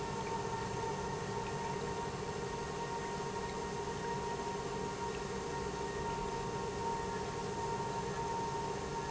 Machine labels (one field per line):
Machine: pump